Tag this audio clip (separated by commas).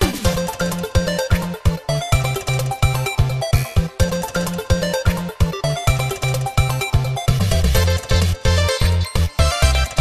Music